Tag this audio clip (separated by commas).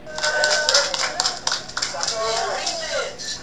Clapping, Applause, Human group actions, Hands